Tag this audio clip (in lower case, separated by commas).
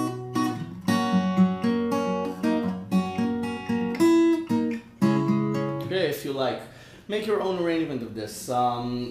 musical instrument, strum, guitar, plucked string instrument, acoustic guitar